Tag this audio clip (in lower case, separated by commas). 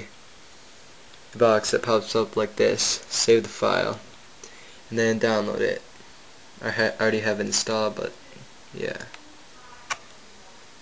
speech